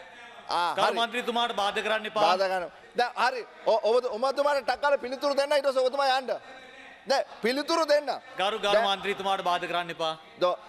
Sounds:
conversation
speech
male speech

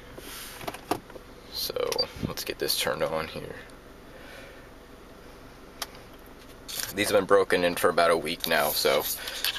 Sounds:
speech

